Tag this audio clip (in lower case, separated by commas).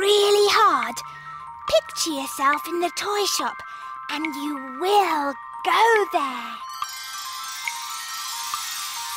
jingle, music, speech